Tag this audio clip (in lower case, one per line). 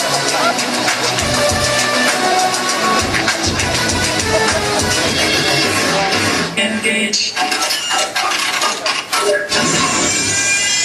music
inside a large room or hall